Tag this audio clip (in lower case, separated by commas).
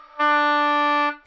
music, musical instrument, woodwind instrument